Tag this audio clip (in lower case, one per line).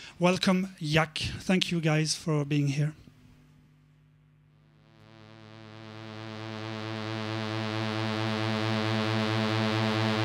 speech